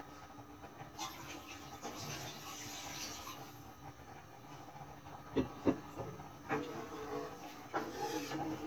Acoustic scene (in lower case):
kitchen